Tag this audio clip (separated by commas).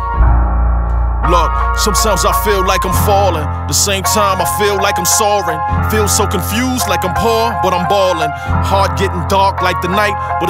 Music